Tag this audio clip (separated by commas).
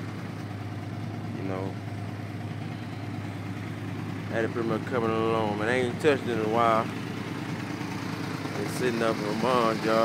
Speech, Vehicle